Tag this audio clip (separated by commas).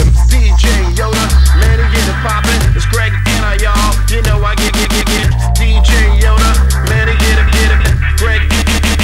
Music